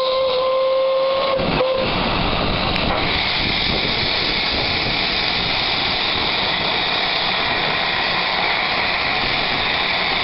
Steam train whistle blowing, hissing